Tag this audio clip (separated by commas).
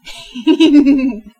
Human voice, Giggle, Laughter